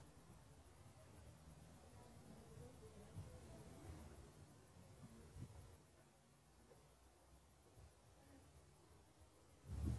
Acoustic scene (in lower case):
residential area